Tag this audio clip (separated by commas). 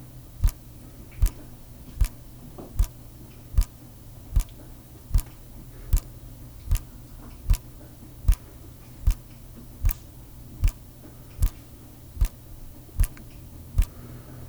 Drip, Liquid